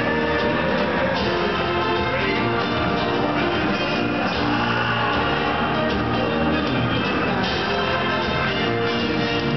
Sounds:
male singing
music

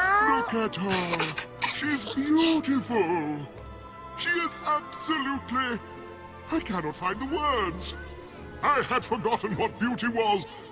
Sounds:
speech

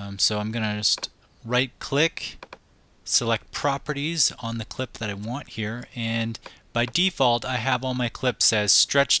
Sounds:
speech

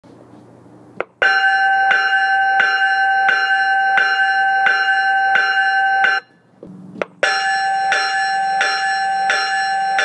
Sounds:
bell

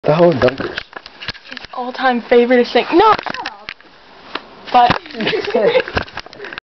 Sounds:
speech

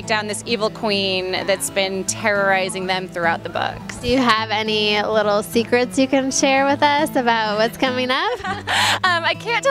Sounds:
music
speech

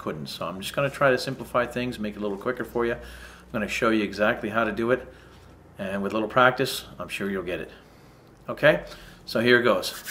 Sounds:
speech

